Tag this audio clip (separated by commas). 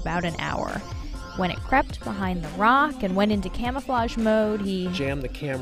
Speech, Music